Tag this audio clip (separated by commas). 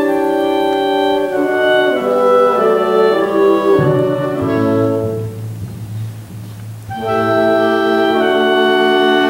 Music, Musical instrument